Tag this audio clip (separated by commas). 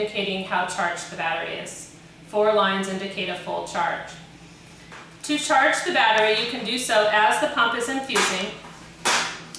Speech